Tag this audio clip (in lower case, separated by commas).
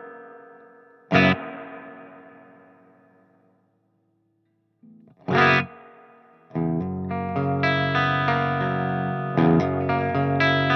musical instrument, electric guitar, plucked string instrument, guitar, music